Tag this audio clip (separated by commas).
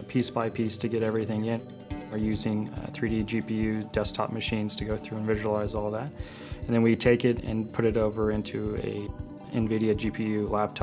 Music, Speech